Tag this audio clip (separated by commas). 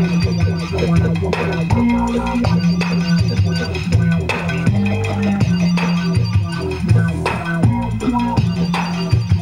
Sound effect, Music